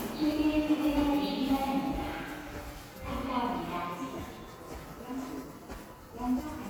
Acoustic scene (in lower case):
subway station